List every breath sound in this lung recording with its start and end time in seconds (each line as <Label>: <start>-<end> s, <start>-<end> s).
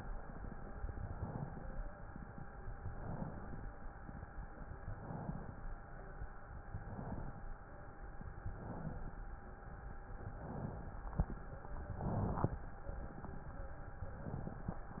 Inhalation: 0.89-1.73 s, 2.82-3.66 s, 4.85-5.68 s, 6.70-7.53 s, 8.41-9.25 s, 10.24-11.08 s, 11.85-12.68 s, 14.20-15.00 s